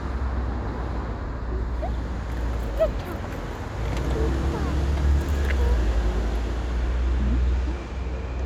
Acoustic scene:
street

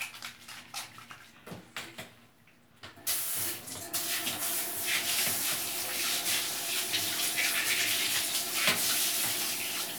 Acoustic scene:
restroom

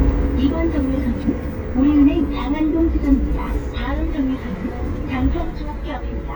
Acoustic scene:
bus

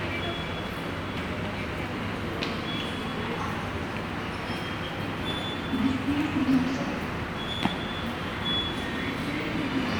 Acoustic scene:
subway station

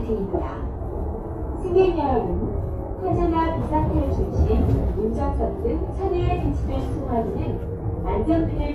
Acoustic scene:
bus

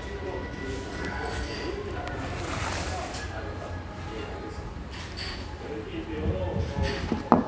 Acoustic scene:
restaurant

